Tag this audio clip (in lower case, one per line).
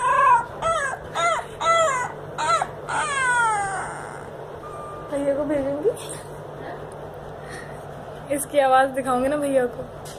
dog whimpering